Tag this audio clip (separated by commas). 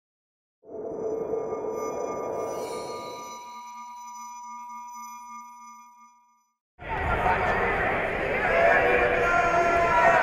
Speech, Music, inside a large room or hall